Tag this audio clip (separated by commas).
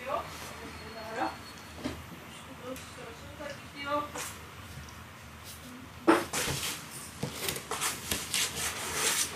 Speech, Cupboard open or close